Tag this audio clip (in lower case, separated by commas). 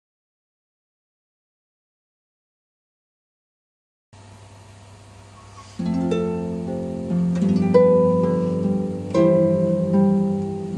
musical instrument, harp, playing harp, music